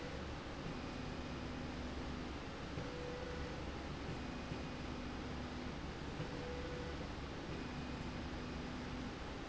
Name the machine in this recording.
slide rail